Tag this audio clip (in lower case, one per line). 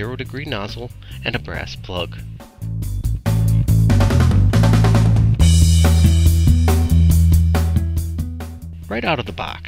music
speech